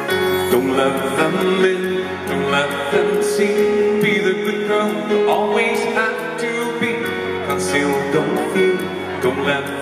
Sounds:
Male singing, Music

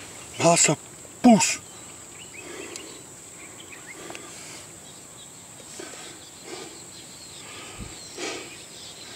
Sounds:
Animal, Insect, Speech

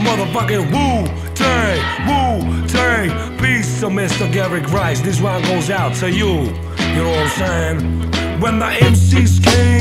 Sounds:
Music

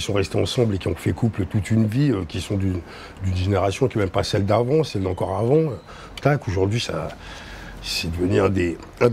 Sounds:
Speech

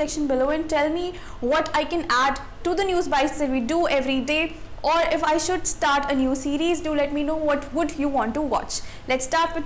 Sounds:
Speech

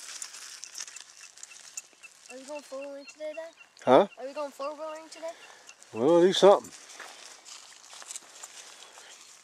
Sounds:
outside, rural or natural, Speech

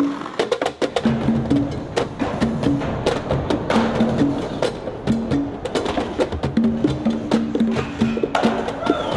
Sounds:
Music, Skateboard

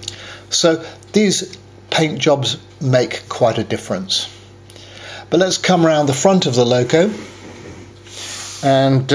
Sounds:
Speech

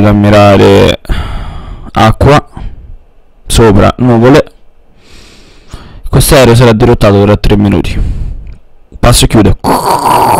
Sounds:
Speech

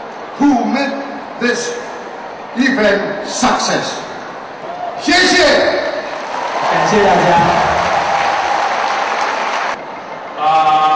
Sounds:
Speech

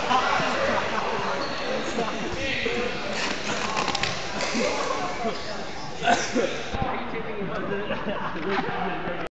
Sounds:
Speech

